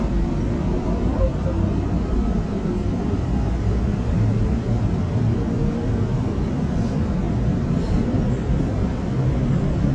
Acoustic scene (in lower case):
subway train